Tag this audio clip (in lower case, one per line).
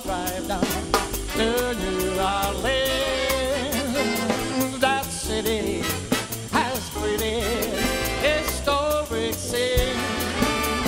jazz
orchestra
music